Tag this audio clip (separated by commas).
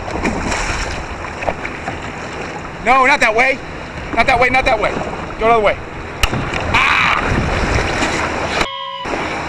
canoe, Speech